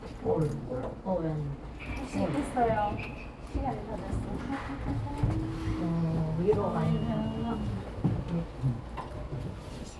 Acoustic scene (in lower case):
elevator